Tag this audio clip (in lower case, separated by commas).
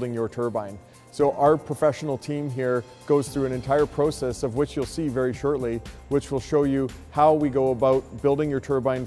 speech, music